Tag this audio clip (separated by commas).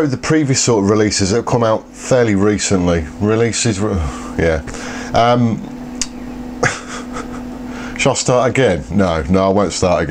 Speech